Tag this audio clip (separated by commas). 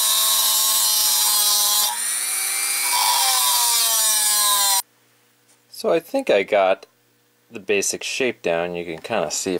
Mechanisms, Gears, pawl